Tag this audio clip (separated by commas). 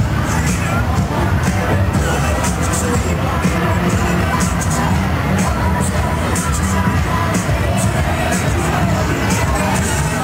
Music